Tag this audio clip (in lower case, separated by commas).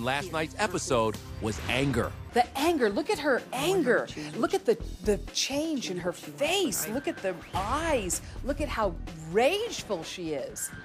speech, music